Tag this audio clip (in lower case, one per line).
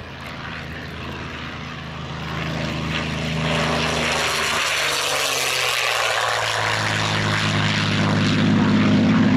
airplane flyby